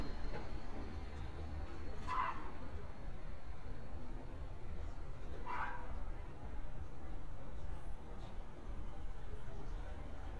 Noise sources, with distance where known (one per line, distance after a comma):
dog barking or whining